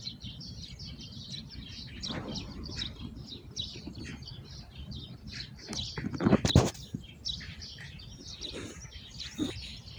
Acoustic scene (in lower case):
park